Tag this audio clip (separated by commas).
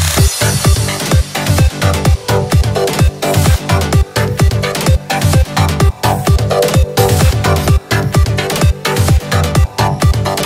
Techno, Electronic music, Music